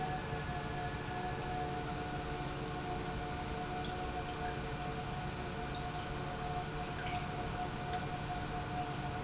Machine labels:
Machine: pump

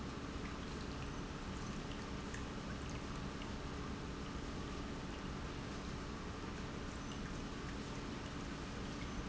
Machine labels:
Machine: pump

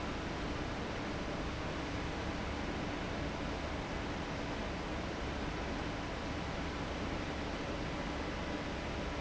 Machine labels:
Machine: fan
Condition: abnormal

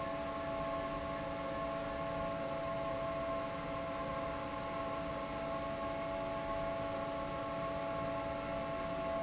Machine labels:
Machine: fan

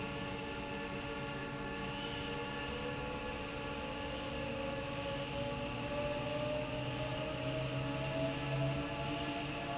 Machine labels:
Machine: fan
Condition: normal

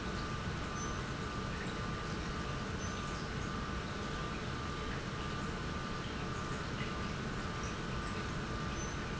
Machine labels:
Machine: pump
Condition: normal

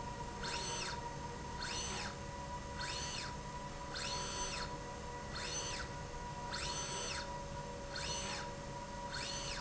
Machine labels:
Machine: slide rail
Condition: normal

